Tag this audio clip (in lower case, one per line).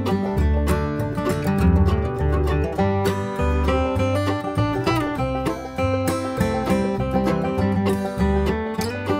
guitar
musical instrument
plucked string instrument
music